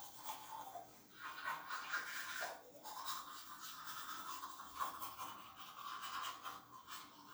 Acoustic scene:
restroom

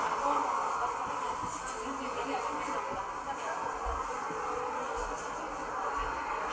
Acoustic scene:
subway station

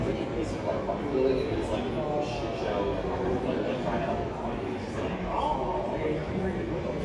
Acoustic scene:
crowded indoor space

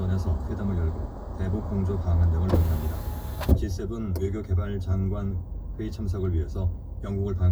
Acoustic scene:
car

